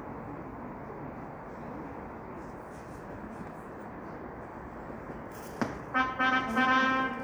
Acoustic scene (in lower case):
subway station